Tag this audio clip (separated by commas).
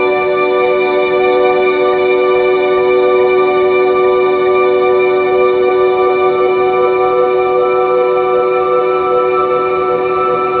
Music